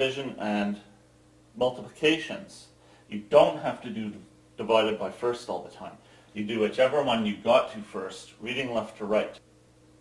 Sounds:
Speech

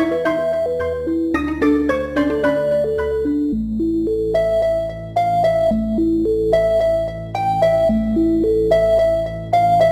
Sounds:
Music

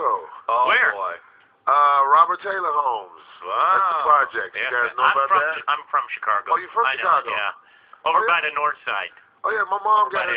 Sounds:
Speech

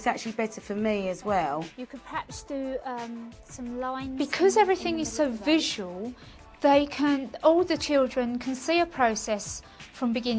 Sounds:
Female speech

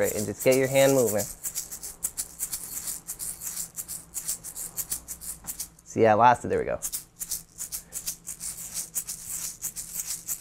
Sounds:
playing tambourine

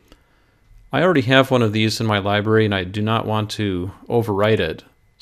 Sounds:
Speech

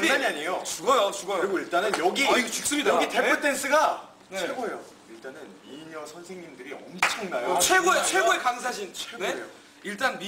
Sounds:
Speech

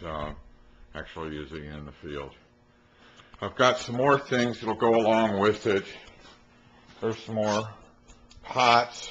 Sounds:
Speech

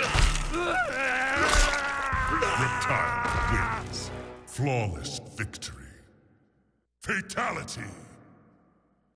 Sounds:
Speech, Music

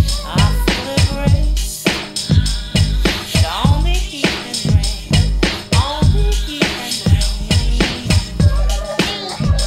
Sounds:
Music

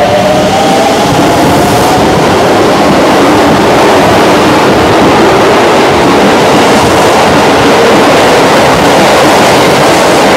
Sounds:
subway

